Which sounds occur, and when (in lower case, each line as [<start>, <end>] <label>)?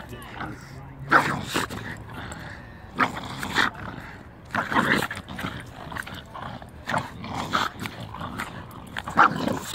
[0.00, 9.74] motor vehicle (road)
[5.25, 6.33] man speaking
[9.13, 9.52] bark